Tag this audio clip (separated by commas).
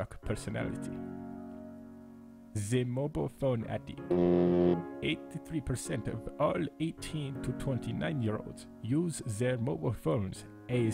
Music, Speech